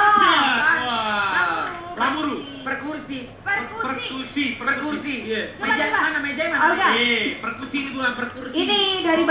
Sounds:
Speech

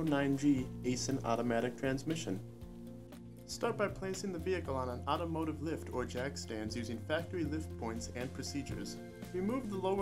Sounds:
Music, Speech

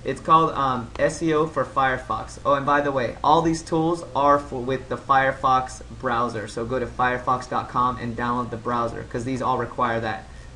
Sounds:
Speech

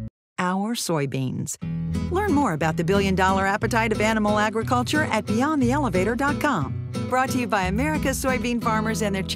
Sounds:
Speech, Music

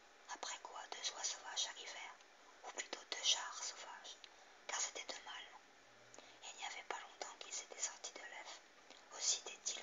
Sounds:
Speech

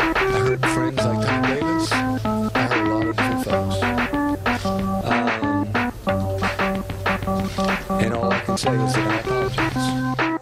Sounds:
Harpsichord, Speech, Music

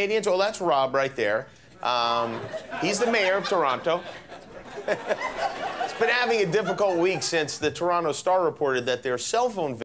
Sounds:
Speech

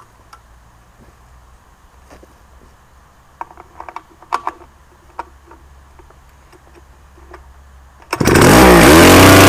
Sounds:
Chainsaw

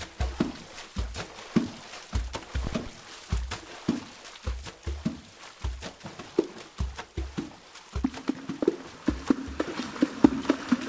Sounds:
Music, Wood block

